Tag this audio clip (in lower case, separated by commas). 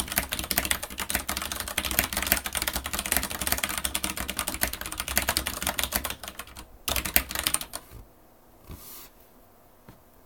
typing, typing on computer keyboard, computer keyboard